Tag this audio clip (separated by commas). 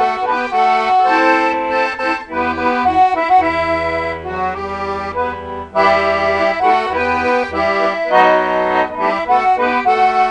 Accordion, Music, Musical instrument